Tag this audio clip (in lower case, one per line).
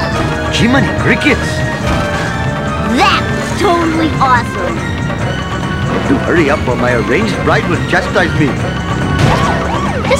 speech
music